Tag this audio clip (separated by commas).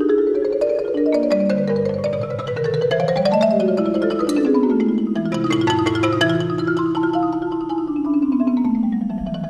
Music